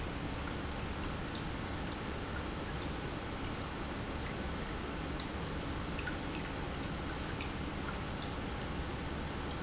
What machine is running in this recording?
pump